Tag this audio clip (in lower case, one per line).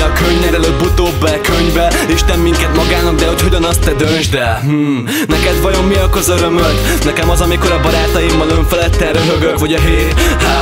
music